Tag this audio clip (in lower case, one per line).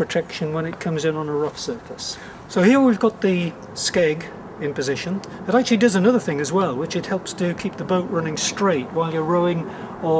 speech